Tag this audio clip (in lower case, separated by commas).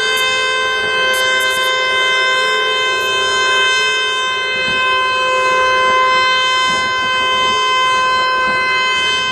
civil defense siren, siren